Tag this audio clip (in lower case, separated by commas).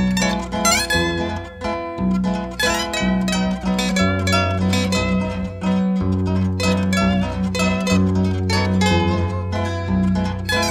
playing zither